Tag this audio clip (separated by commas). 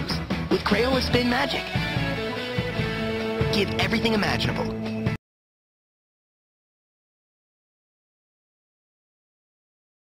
Music, Speech